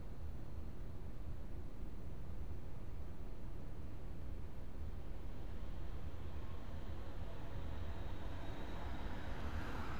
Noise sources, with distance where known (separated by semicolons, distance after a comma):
background noise